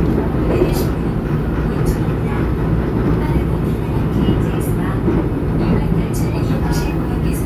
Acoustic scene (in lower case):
subway train